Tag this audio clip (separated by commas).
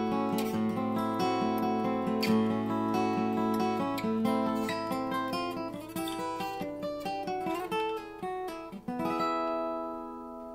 Music